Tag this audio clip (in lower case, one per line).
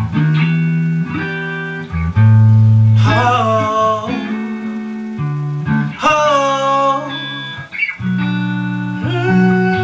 music
male singing